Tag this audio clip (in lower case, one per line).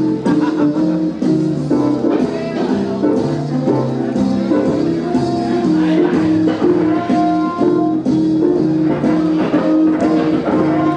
musical instrument
music